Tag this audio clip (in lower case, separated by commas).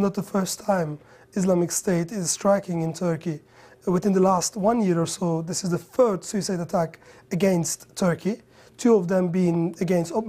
speech